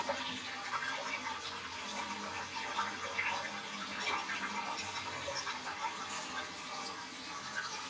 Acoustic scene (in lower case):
restroom